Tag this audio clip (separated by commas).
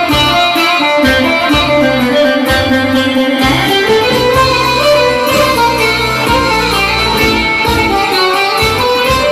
Plucked string instrument, Music, Musical instrument, Folk music